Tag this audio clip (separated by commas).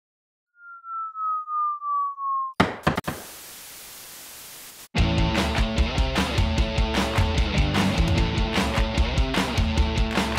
Music